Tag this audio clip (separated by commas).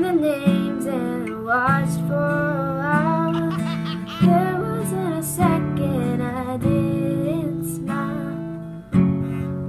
Music